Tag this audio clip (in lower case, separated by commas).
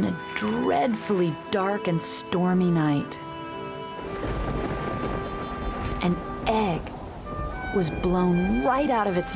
music, speech